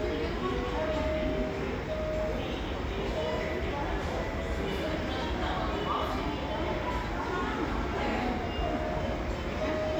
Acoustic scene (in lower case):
cafe